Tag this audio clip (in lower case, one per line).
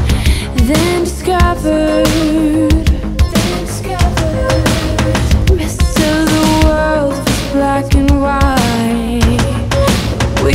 music
soundtrack music